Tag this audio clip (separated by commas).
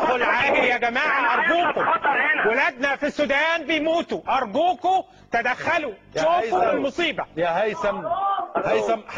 Speech